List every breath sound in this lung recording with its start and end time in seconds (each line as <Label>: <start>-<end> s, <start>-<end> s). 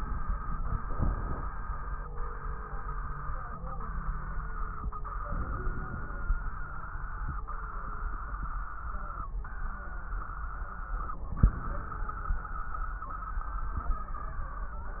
Inhalation: 0.84-1.49 s, 5.30-6.20 s, 11.25-12.15 s
Crackles: 0.84-1.49 s, 5.31-6.21 s, 11.25-12.15 s